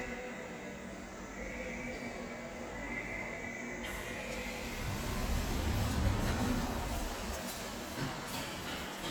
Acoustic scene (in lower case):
subway station